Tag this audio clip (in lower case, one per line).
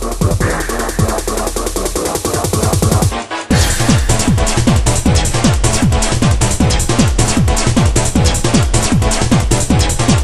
music
sampler